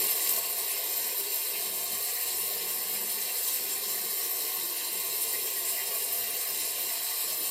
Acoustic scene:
restroom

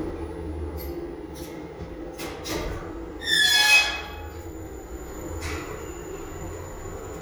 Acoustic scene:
elevator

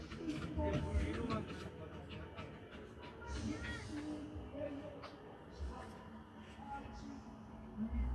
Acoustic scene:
park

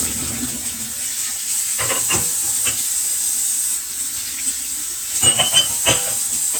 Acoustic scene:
kitchen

